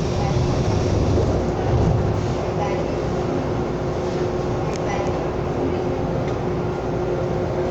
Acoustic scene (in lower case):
subway train